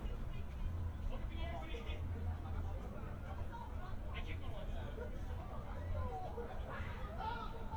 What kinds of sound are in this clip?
person or small group talking